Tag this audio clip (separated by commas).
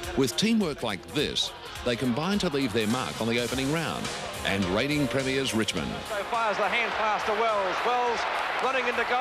Music, Speech